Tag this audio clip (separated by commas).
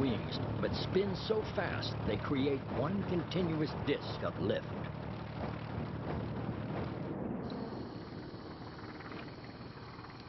Speech